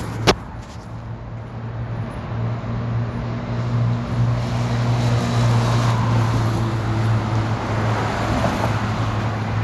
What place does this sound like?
street